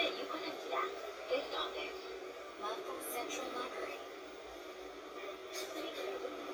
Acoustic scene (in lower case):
bus